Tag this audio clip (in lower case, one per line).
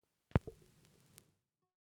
crackle